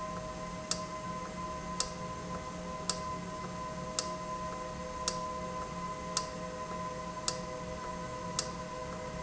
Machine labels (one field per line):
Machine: valve